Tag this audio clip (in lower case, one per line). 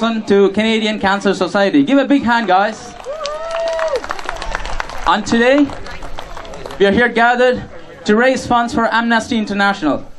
speech